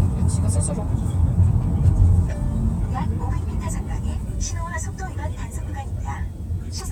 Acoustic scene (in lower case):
car